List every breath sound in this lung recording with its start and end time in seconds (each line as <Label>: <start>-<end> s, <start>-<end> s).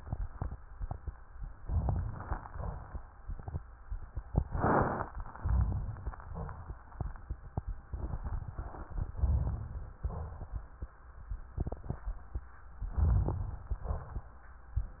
Inhalation: 1.59-2.43 s, 5.19-6.14 s, 9.16-10.02 s, 12.85-13.89 s
Exhalation: 2.43-3.04 s, 6.17-6.91 s, 10.02-10.87 s, 13.89-14.45 s
Crackles: 1.59-2.43 s, 2.44-3.04 s, 5.19-6.14 s, 6.17-6.91 s, 12.85-13.89 s